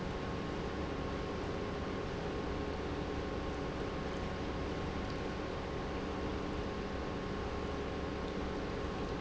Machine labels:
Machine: pump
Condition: normal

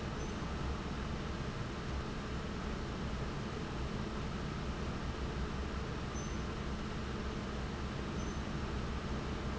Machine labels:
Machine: fan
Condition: abnormal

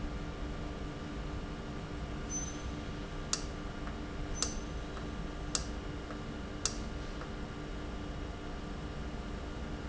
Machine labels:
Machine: valve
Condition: normal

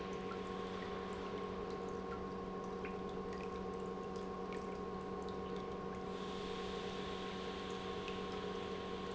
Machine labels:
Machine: pump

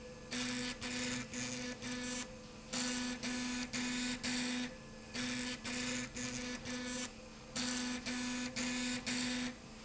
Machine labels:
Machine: slide rail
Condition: abnormal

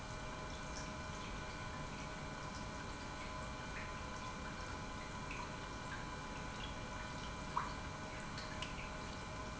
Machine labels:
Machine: pump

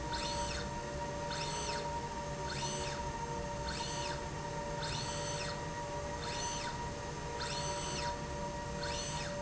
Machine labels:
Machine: slide rail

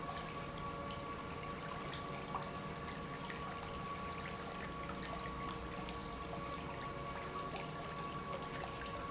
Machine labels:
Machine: pump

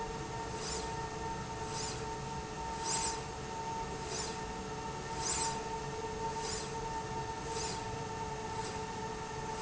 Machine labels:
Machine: slide rail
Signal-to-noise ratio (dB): -6 dB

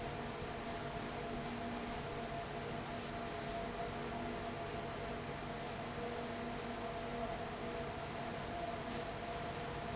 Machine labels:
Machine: fan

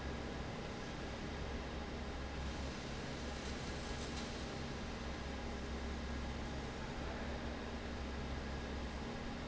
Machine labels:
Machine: fan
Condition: normal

